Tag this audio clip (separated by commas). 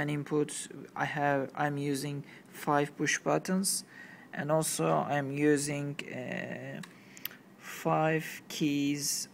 Speech